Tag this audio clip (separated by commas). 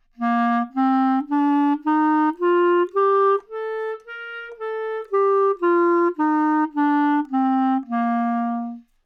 Musical instrument, Music, Wind instrument